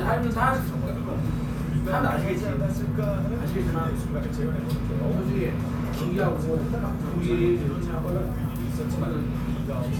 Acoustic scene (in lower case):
crowded indoor space